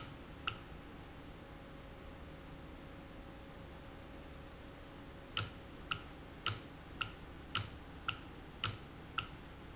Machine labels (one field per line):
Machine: valve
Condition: normal